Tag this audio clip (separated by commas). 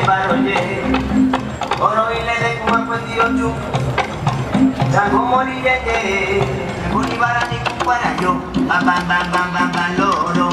Male singing, Music